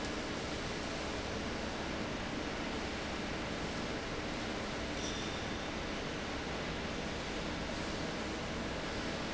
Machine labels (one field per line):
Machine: fan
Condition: abnormal